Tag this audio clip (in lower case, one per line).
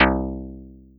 music
guitar
musical instrument
plucked string instrument